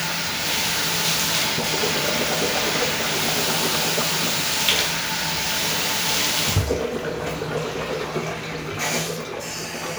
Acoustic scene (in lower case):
restroom